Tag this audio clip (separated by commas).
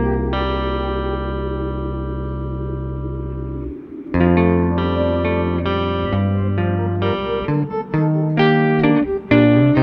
inside a small room, Music